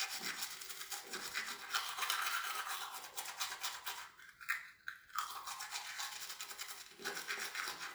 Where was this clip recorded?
in a restroom